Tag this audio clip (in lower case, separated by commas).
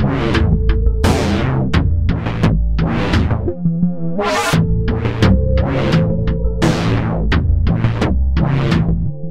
music